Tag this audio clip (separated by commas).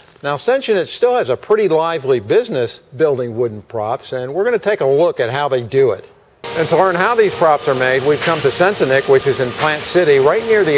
Speech